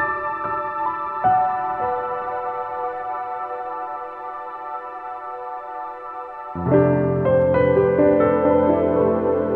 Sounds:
Ambient music, Music

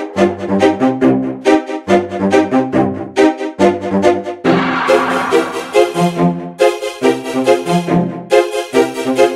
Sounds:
Dubstep, Electronic music, Music

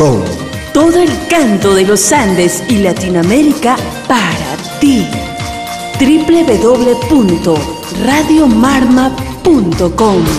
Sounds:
Music, Speech

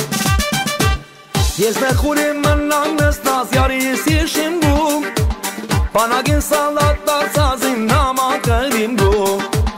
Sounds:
Music

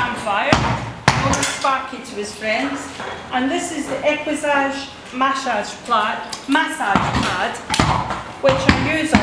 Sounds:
Speech

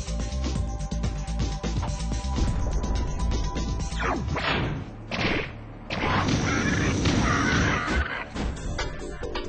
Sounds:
Music

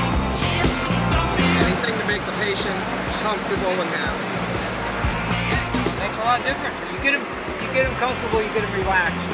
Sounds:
Rock and roll, Music, Speech

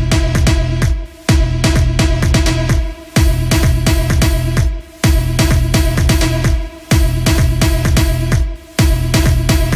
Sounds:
Dance music

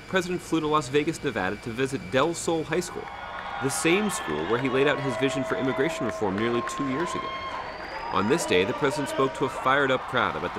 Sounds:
Speech

